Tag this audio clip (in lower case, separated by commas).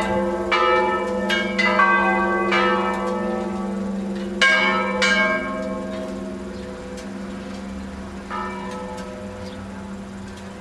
bell